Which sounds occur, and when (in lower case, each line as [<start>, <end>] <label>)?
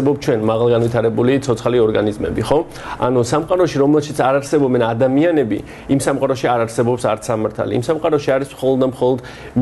[0.00, 2.57] male speech
[0.00, 9.61] mechanisms
[0.00, 9.61] narration
[0.74, 0.98] generic impact sounds
[2.65, 2.98] breathing
[2.98, 5.63] male speech
[3.37, 3.57] generic impact sounds
[5.61, 5.84] breathing
[5.85, 9.19] male speech
[9.23, 9.51] breathing